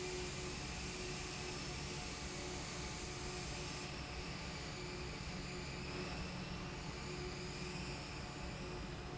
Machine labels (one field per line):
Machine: fan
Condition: abnormal